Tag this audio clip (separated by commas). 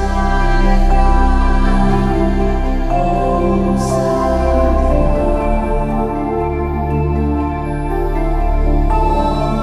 New-age music, Music